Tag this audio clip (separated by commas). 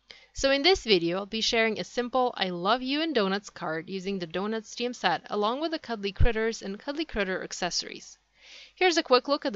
Speech